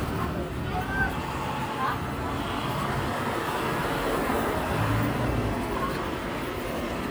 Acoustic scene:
residential area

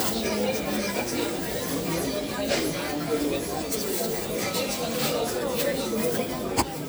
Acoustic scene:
crowded indoor space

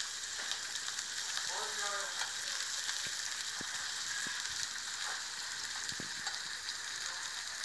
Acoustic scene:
restaurant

